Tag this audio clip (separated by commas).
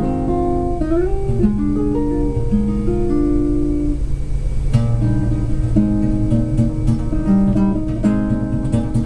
Music, Acoustic guitar, Strum, Plucked string instrument, Jazz, Musical instrument, Guitar